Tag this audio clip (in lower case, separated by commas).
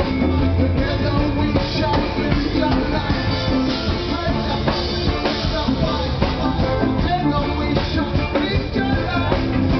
blues, music